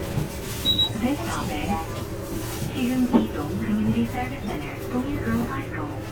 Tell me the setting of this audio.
bus